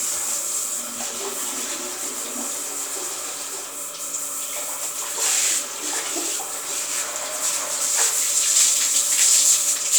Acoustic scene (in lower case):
restroom